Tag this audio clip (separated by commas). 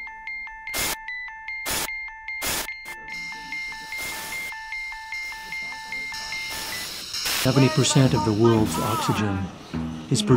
Music, Speech, inside a small room